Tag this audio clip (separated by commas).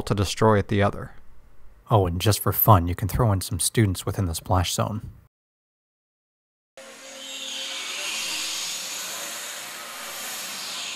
Speech